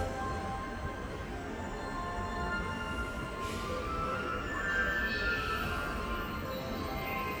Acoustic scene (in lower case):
subway station